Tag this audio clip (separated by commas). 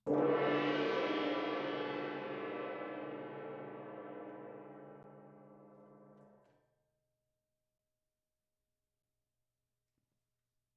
Music, Musical instrument, Percussion, Gong